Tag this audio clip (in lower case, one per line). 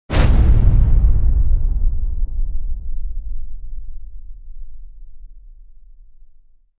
slam